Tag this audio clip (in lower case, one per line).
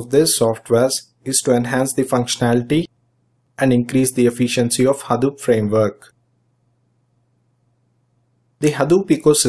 speech